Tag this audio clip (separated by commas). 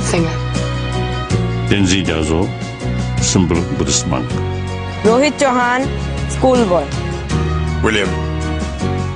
Music, Speech